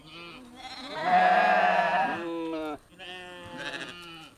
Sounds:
livestock, animal

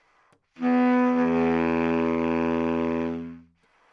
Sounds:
music, woodwind instrument, musical instrument

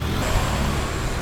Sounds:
vehicle, car, motor vehicle (road), engine

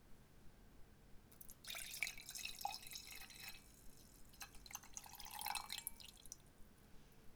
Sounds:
liquid, fill (with liquid), glass, pour, trickle

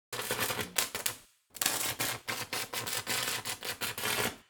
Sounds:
tools

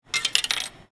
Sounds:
coin (dropping), domestic sounds

